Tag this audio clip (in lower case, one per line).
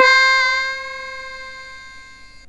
music
musical instrument
keyboard (musical)